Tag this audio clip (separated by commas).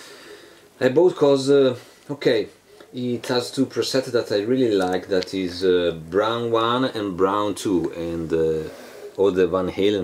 Speech